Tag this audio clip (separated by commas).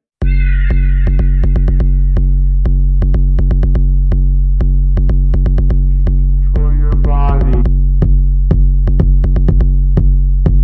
Drum machine